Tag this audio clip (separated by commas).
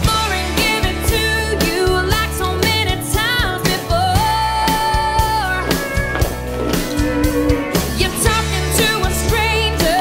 Walk, Music